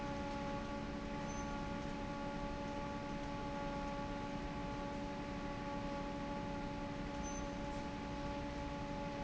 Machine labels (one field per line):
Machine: fan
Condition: normal